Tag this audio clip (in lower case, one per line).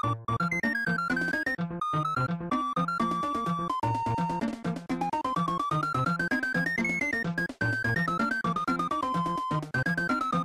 music
theme music